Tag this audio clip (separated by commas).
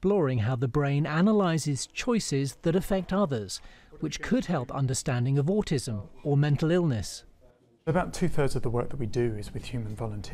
Speech